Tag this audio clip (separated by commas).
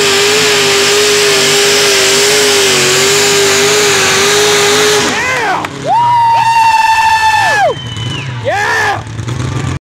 Speech